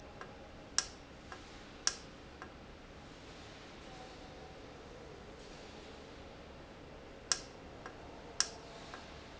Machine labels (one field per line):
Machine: valve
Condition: normal